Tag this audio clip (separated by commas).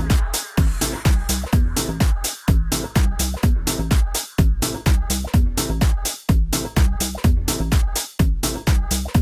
Music, Dance music